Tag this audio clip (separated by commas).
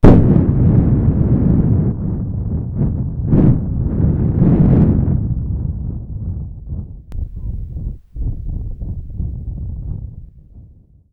Thunderstorm